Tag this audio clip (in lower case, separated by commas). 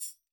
music, percussion, tambourine, musical instrument